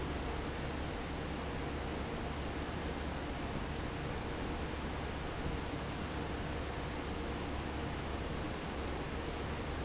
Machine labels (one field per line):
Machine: fan